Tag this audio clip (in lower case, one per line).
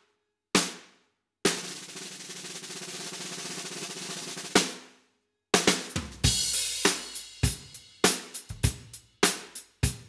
music
drum kit
drum
drum roll
musical instrument